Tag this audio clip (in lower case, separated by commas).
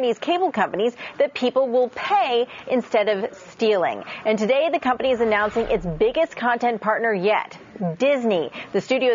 speech